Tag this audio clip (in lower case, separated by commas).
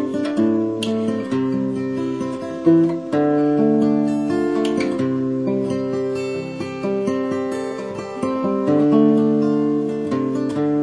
guitar, musical instrument, plucked string instrument, music, strum, acoustic guitar